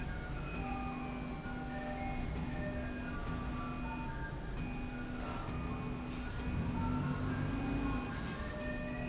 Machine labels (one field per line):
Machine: slide rail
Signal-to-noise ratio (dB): -6 dB